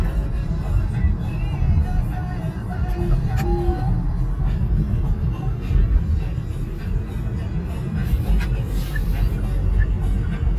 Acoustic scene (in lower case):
car